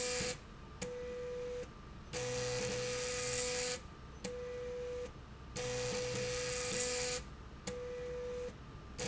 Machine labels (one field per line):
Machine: slide rail